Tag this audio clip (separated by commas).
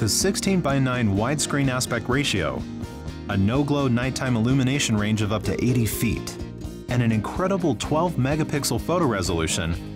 Speech, Music